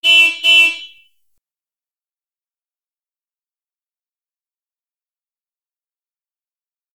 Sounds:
honking, alarm, car, motor vehicle (road), vehicle

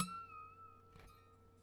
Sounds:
music, harp, musical instrument

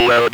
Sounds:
human voice, speech

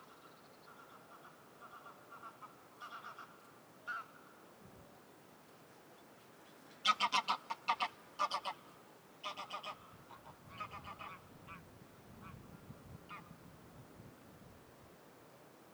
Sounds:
bird vocalization, bird, wild animals, animal, livestock, fowl

